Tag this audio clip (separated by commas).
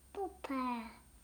Speech, Child speech, Human voice